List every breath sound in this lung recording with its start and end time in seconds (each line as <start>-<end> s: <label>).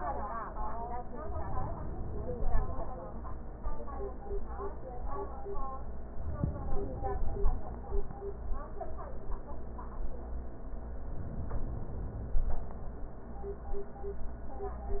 1.33-2.83 s: inhalation
6.19-7.77 s: inhalation
11.03-12.82 s: inhalation